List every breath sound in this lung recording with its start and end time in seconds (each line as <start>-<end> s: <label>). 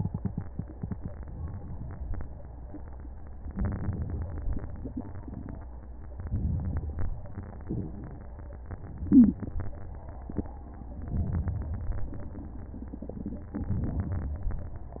1.50-2.21 s: inhalation
3.52-4.39 s: inhalation
6.24-7.11 s: inhalation
11.13-12.12 s: inhalation
13.66-14.65 s: inhalation